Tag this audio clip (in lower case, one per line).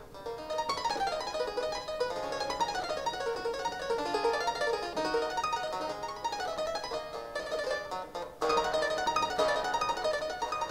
playing harpsichord